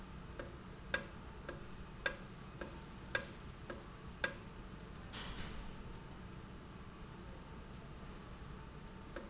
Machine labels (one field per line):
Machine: valve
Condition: normal